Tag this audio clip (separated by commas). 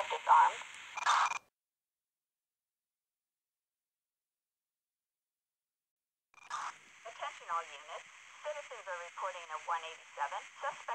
police radio chatter